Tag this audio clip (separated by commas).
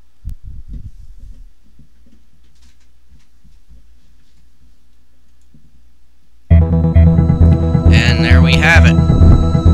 Music, Speech